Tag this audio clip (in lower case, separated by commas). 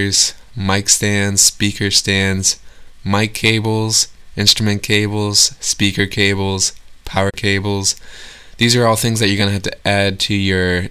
speech